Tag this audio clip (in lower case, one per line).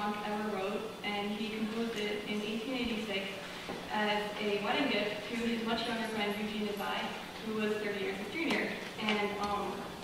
speech